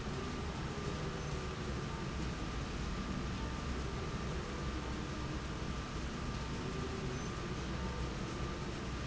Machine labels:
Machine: slide rail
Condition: normal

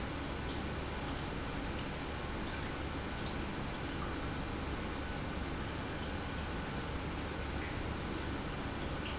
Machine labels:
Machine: pump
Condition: normal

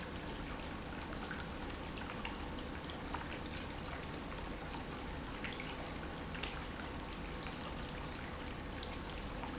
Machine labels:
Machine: pump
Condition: normal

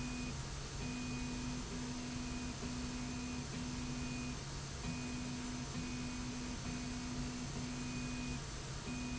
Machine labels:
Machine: slide rail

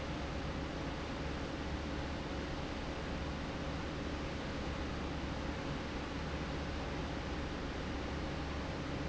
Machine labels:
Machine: fan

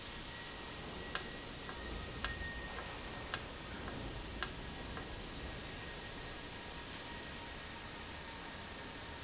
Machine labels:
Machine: valve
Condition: normal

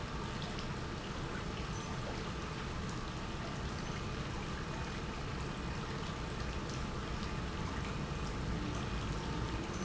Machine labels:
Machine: pump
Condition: normal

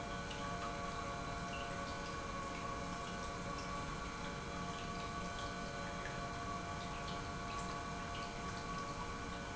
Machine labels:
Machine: pump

